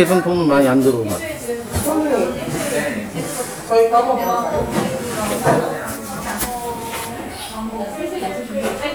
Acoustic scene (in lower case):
crowded indoor space